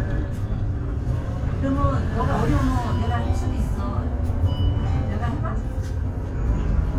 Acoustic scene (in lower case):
bus